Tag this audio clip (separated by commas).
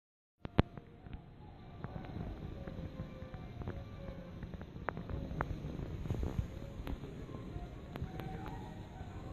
Music